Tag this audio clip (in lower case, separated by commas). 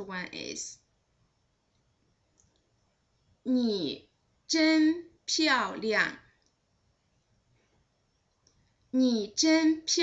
speech, inside a small room